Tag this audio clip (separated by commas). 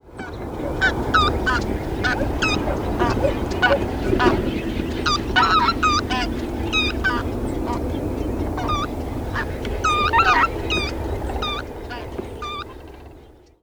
Animal, Fowl, livestock